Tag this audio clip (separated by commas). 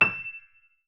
Music, Piano, Keyboard (musical), Musical instrument